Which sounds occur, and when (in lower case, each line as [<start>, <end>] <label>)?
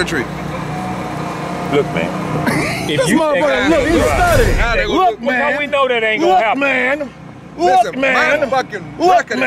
[0.00, 0.26] male speech
[0.00, 9.45] conversation
[0.00, 9.45] motor vehicle (road)
[1.69, 2.07] male speech
[2.43, 3.12] chuckle
[2.85, 7.08] male speech
[3.41, 4.71] sound effect
[7.50, 8.76] male speech
[8.97, 9.45] male speech